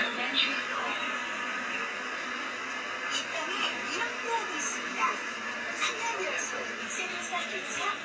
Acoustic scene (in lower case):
bus